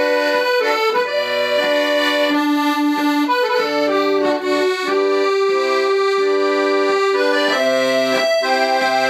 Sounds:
playing accordion
music
accordion

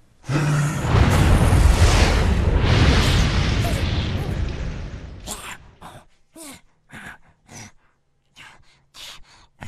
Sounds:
sound effect

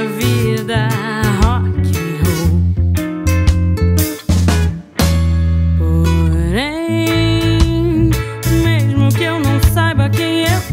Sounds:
musical instrument
music
singing

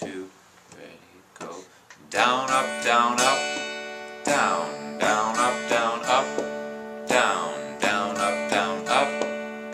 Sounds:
music
speech
guitar
strum
musical instrument
acoustic guitar
plucked string instrument

